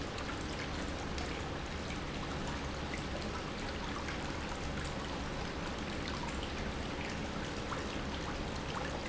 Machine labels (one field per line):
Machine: pump